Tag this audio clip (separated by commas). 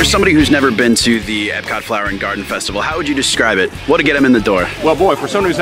Speech, Music